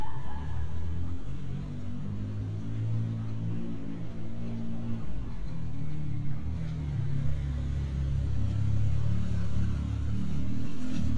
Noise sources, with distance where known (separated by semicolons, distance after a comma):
medium-sounding engine, near